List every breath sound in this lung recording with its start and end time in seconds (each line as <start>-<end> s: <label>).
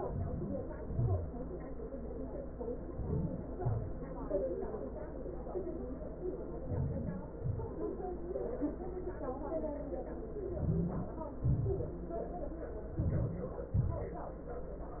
0.00-0.78 s: inhalation
0.83-1.29 s: exhalation
2.79-3.57 s: inhalation
3.57-4.16 s: exhalation
6.24-6.89 s: inhalation
6.89-7.40 s: exhalation
10.32-11.08 s: inhalation
11.16-11.92 s: exhalation
12.81-13.51 s: inhalation
13.53-14.23 s: exhalation